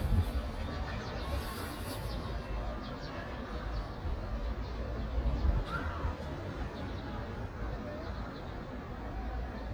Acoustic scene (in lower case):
street